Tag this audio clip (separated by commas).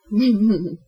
Human voice, Laughter